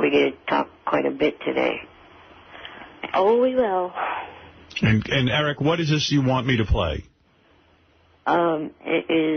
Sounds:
speech

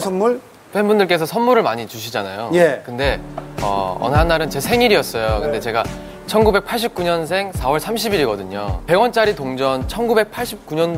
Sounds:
music, speech

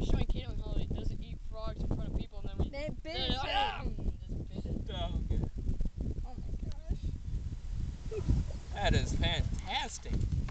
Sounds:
speech

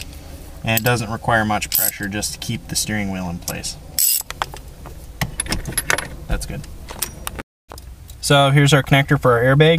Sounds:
speech

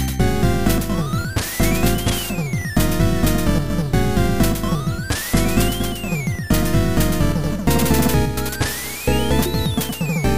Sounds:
video game music, music

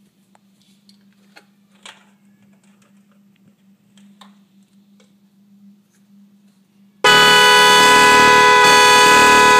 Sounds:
toot

